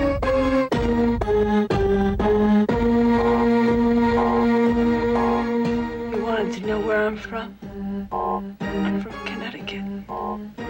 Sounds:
speech
music

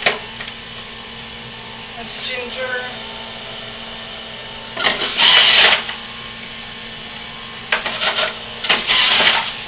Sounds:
blender

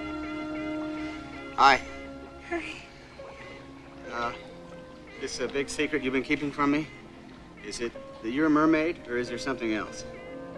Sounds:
speech
music
water

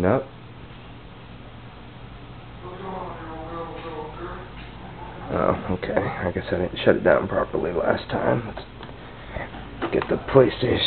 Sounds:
speech

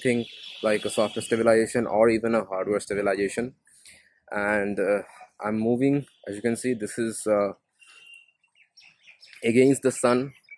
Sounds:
speech

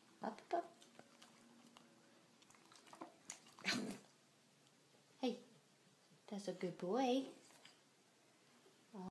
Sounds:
speech

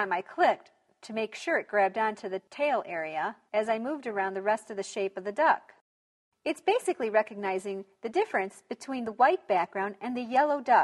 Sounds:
speech

